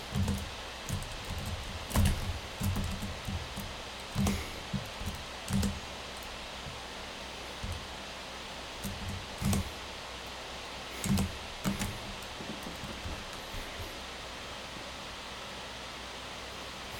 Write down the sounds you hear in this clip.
keyboard typing